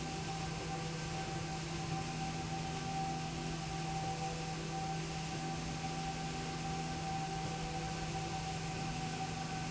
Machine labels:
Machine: slide rail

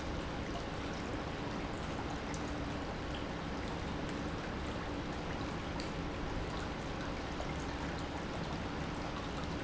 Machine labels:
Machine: pump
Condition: normal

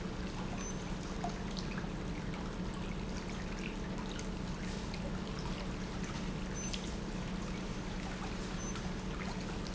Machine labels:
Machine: pump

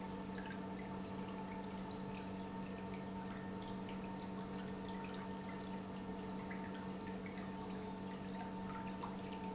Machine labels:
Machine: pump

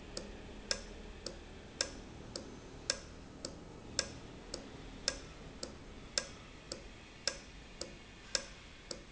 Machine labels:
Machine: valve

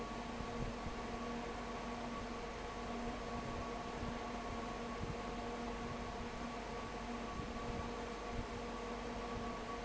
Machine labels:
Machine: fan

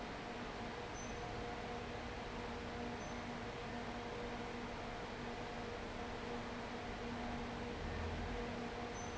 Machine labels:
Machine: fan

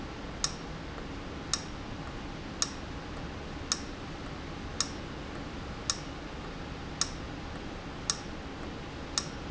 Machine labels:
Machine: valve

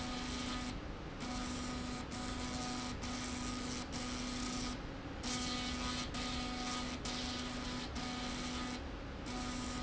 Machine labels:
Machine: slide rail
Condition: abnormal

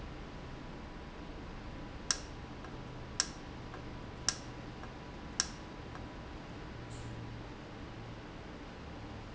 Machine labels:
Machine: valve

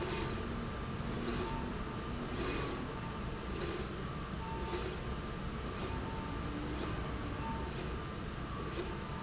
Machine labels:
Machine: slide rail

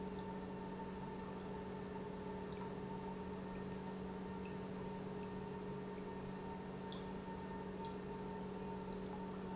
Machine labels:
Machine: pump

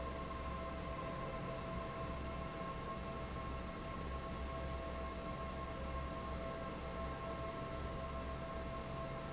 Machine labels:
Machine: fan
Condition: normal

